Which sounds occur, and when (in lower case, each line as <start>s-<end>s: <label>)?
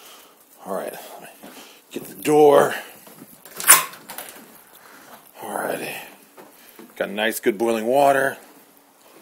0.0s-0.3s: surface contact
0.0s-9.2s: boiling
0.0s-9.2s: mechanisms
0.6s-1.4s: man speaking
0.9s-1.3s: breathing
1.4s-1.5s: walk
1.4s-1.8s: surface contact
1.9s-2.1s: walk
1.9s-2.8s: man speaking
2.5s-2.7s: walk
2.7s-3.0s: breathing
3.1s-3.3s: walk
3.4s-3.9s: generic impact sounds
4.0s-4.3s: generic impact sounds
4.7s-5.2s: surface contact
5.3s-6.1s: man speaking
6.3s-6.4s: generic impact sounds
6.5s-6.8s: breathing
6.7s-6.8s: walk
6.9s-8.3s: man speaking